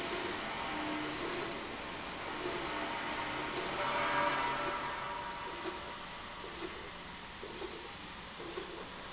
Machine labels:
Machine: slide rail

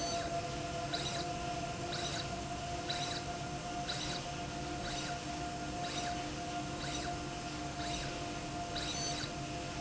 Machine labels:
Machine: slide rail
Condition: abnormal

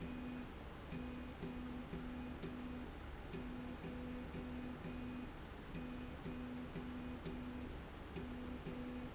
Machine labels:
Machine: slide rail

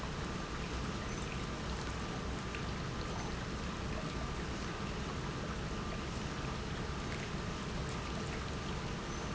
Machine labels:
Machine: pump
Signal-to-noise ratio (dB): -6 dB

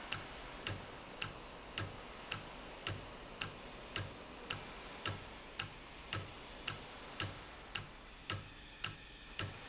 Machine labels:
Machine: valve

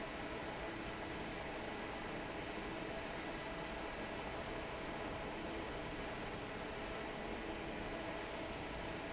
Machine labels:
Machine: fan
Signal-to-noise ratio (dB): 6 dB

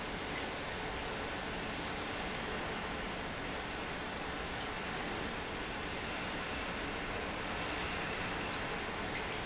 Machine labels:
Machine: pump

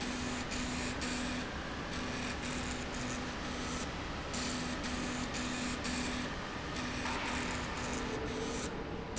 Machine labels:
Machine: slide rail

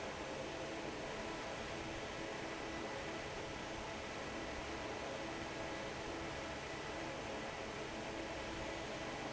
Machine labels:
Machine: fan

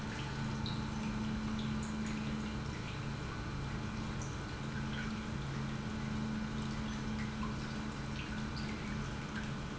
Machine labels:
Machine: pump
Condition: normal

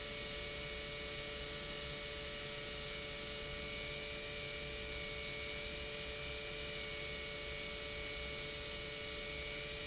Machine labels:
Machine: pump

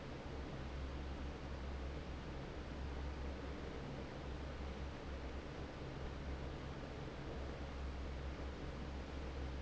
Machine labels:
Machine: fan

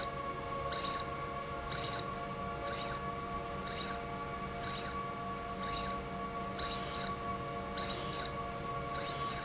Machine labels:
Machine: slide rail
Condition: abnormal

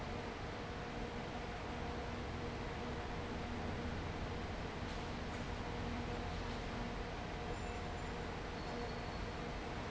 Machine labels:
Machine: fan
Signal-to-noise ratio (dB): 0 dB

